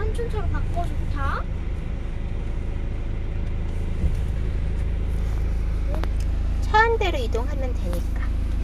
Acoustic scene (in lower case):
car